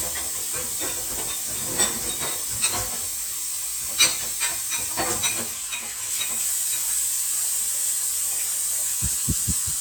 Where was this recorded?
in a kitchen